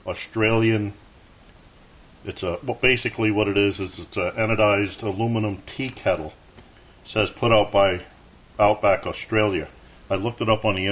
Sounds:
speech

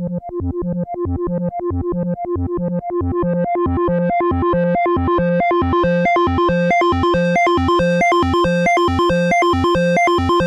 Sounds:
music
synthesizer

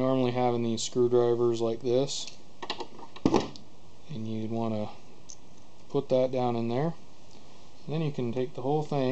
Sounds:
speech

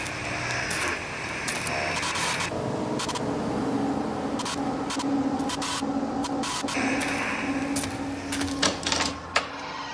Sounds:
inside a small room

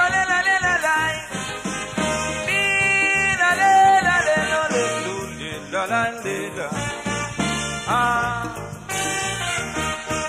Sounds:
music

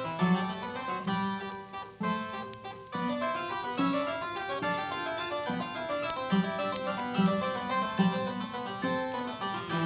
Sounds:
harpsichord

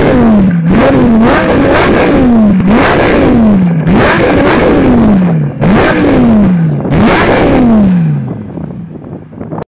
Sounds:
car
revving
vehicle

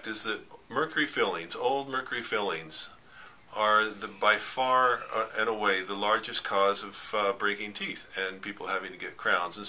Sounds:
speech

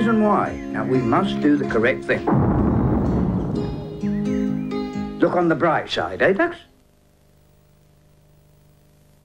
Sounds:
speech
music

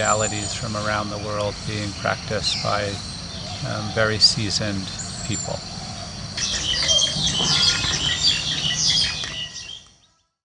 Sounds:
tweet
outside, rural or natural
speech
bird song

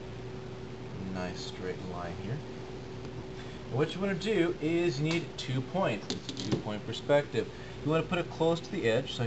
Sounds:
speech

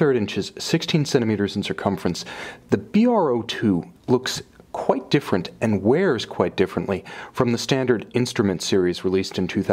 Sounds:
speech

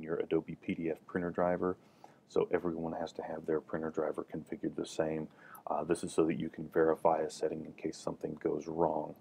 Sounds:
speech

